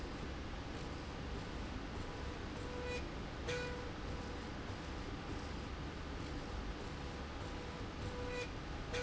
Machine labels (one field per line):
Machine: slide rail